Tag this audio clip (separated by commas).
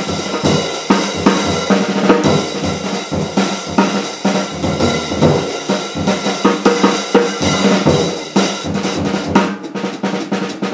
Snare drum, Bass drum, Rimshot, Drum, Percussion, Drum kit